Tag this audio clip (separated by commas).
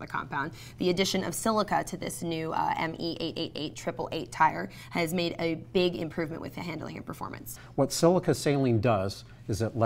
inside a large room or hall, Speech